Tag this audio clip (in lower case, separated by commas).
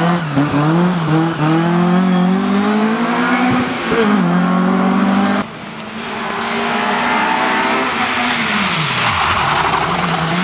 vehicle, car, auto racing, outside, rural or natural